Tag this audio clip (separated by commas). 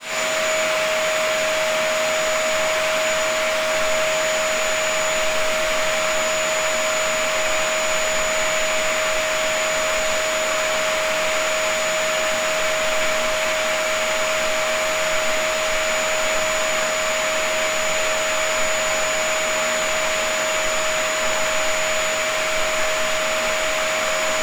Domestic sounds